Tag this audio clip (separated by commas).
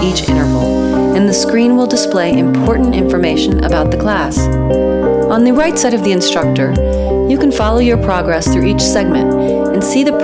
Music, Speech